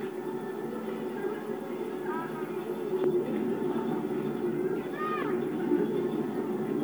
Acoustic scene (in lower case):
park